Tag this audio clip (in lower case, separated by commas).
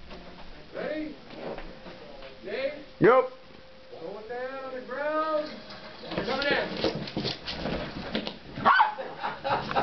speech